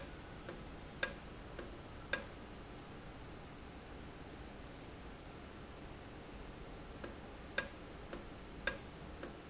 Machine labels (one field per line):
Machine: valve